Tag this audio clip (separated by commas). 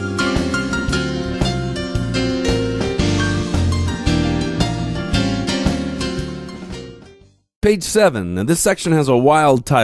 Speech, Music